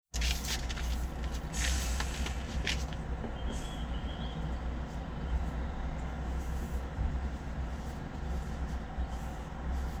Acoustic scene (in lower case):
residential area